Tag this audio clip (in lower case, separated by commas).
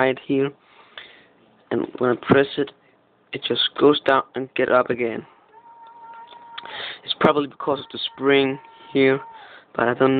speech, inside a small room